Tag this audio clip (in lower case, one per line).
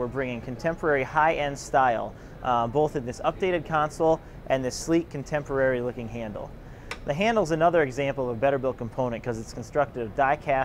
speech